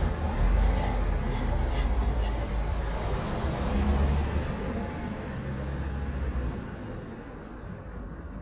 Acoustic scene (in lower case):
residential area